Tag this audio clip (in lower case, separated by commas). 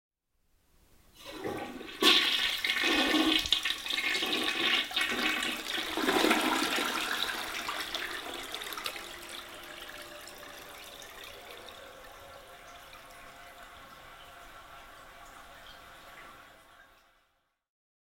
domestic sounds, toilet flush